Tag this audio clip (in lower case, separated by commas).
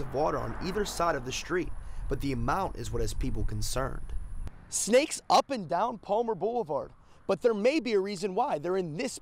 speech, outside, rural or natural, vehicle